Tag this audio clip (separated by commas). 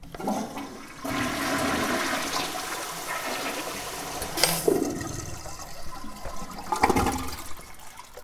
Domestic sounds, Toilet flush